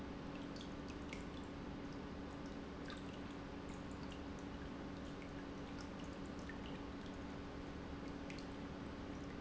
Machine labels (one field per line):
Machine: pump